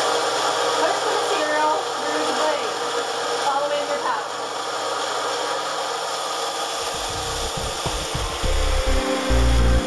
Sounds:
Speech, Music

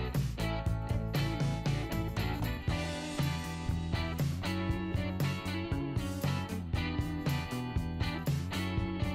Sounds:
Music

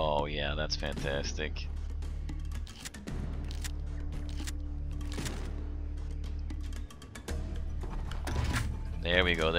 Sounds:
Speech, Music

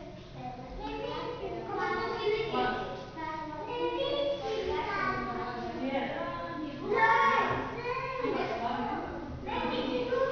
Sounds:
Speech, inside a large room or hall

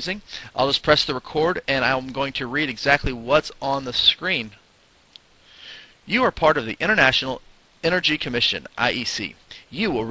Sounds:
Speech

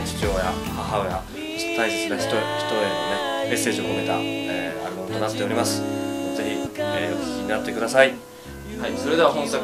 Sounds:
Speech, Music

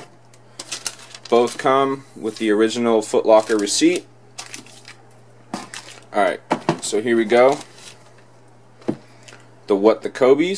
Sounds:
Speech, inside a small room

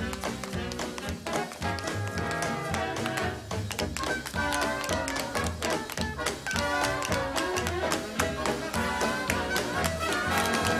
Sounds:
tap dancing

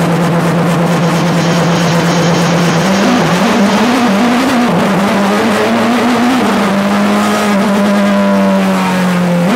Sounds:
Motor vehicle (road), Vehicle, Car

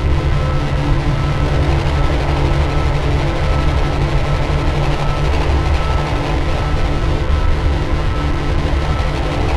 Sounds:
Sound effect

